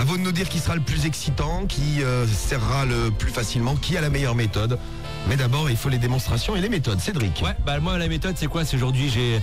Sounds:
Music, Speech

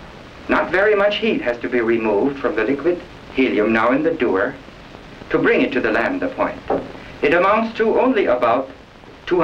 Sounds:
Speech

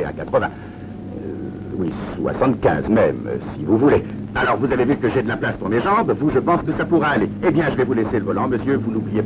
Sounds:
Speech

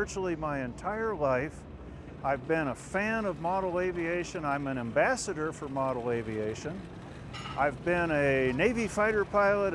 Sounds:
Speech

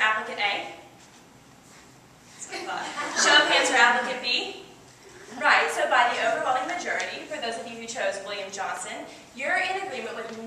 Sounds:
Female speech, Speech, monologue

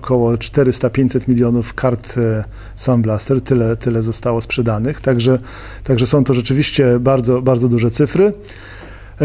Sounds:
Speech

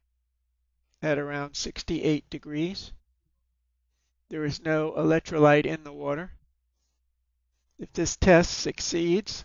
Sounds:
Speech

